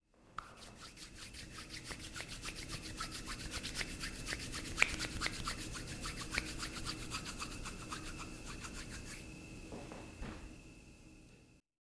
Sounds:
hands

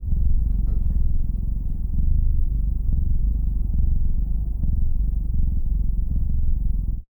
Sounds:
cat
animal
domestic animals
purr

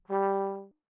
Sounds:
music
brass instrument
musical instrument

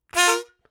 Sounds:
harmonica
music
musical instrument

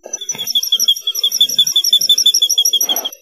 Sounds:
wild animals
tweet
animal
bird vocalization
bird

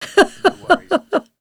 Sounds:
human voice
laughter

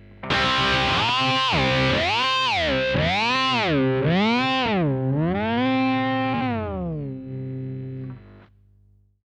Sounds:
guitar
musical instrument
music
plucked string instrument
electric guitar

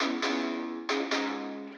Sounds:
musical instrument
music
plucked string instrument
guitar
electric guitar

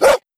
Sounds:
animal
domestic animals
dog
bark

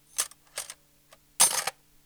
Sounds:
cutlery
home sounds

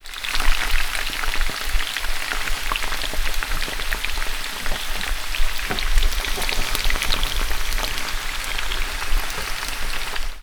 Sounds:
frying (food)
domestic sounds

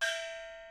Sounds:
musical instrument
music
gong
percussion

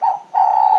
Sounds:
wild animals
bird
animal

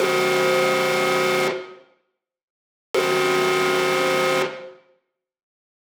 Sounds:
alarm

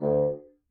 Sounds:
woodwind instrument
music
musical instrument

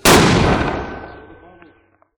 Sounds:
explosion

